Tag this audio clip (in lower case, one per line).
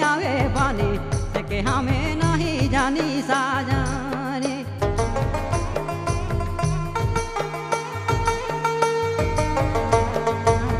music